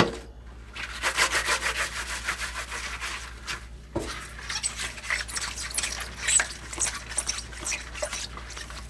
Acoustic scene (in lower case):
kitchen